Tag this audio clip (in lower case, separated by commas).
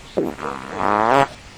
fart